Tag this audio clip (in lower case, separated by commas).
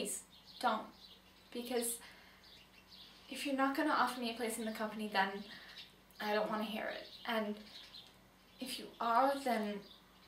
narration, speech